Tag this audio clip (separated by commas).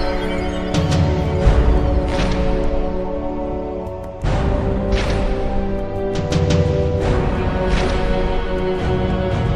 Music